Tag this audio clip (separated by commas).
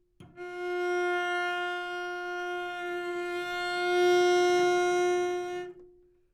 Bowed string instrument, Music, Musical instrument